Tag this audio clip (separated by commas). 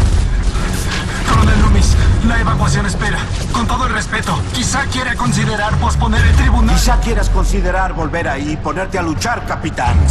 Speech